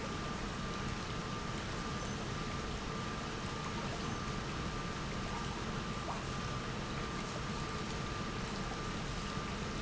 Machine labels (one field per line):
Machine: pump